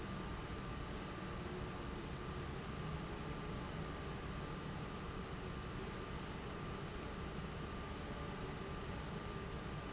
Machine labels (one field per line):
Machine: fan